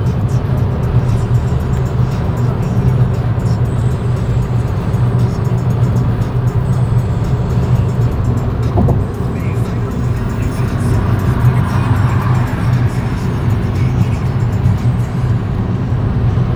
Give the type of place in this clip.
car